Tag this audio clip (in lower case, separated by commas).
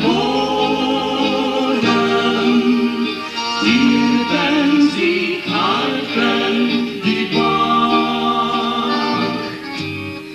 music, inside a large room or hall